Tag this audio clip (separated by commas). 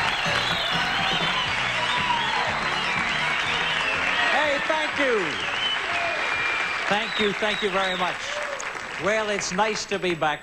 Speech, Music